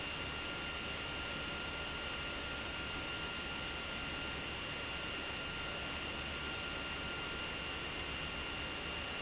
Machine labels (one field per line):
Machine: pump